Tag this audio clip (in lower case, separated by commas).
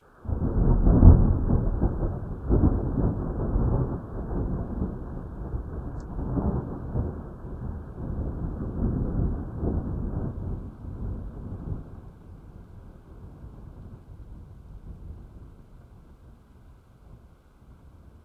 thunder, thunderstorm